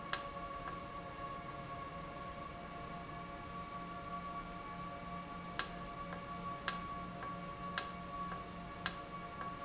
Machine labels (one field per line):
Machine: valve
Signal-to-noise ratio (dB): 0 dB